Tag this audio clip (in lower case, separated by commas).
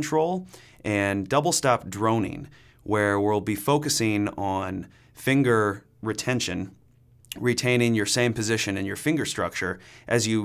speech